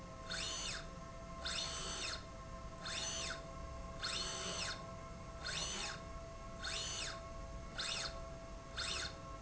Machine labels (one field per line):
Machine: slide rail